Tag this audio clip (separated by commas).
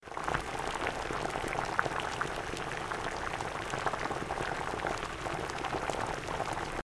Boiling, Liquid